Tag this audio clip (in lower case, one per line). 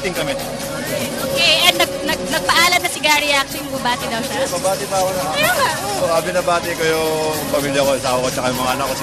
speech noise
music
speech